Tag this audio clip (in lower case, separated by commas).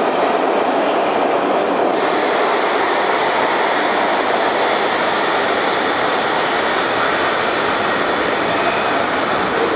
subway